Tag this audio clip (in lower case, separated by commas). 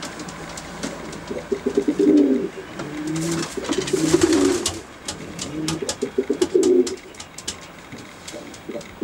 bird, coo